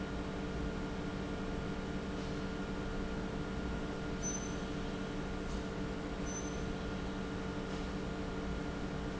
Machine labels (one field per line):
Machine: pump